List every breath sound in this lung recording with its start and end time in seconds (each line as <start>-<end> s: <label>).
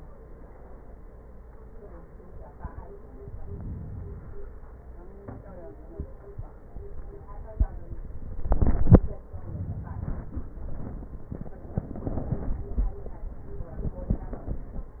3.34-4.40 s: inhalation